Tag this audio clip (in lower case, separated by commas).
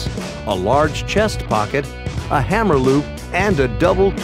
speech, music